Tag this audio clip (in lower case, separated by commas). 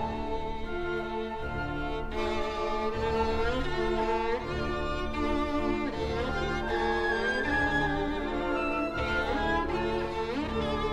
violin, music, bowed string instrument